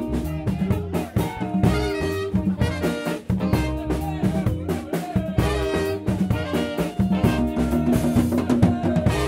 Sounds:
Percussion, Brass instrument, Trumpet, Trombone, Saxophone, Bass drum, Drum, Rimshot, Drum kit

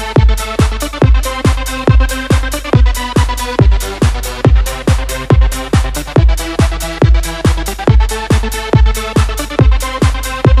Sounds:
Techno, Electronic music, Music

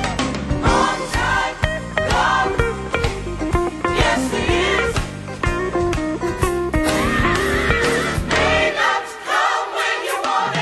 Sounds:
Music, Plucked string instrument, Musical instrument, Strum, Guitar

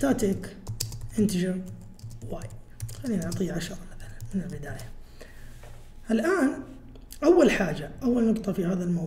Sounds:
Speech

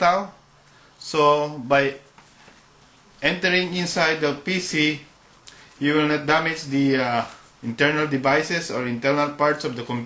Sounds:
Speech

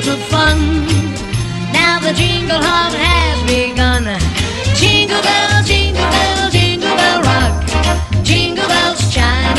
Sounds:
Jingle bell

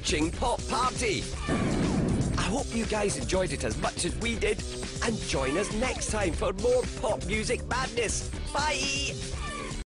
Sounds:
Music, Speech

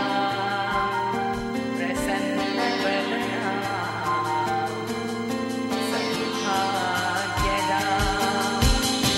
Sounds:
Music

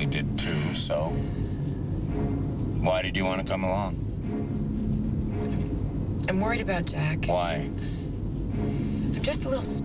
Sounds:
Music, Speech

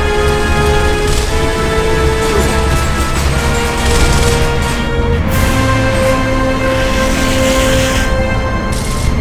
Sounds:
Mechanisms

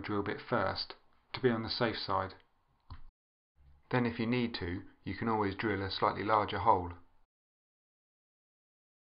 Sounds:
Speech, inside a small room

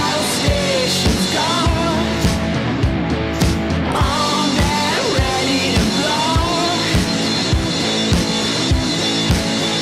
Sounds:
Music, Pop music

